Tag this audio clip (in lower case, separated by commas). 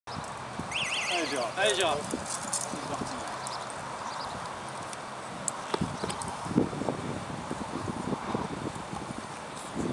speech